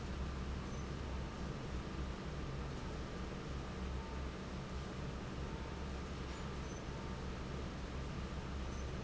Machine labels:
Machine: fan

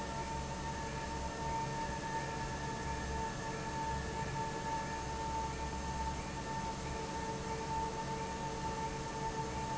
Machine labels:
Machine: fan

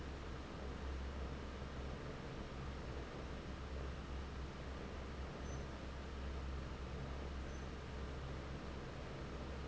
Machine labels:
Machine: fan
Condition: normal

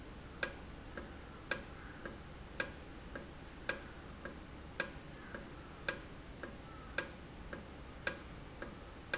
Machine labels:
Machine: valve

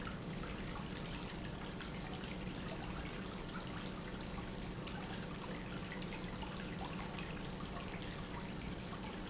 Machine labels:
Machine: pump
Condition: normal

